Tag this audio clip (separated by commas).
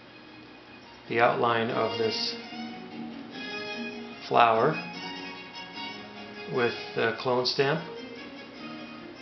Music, Speech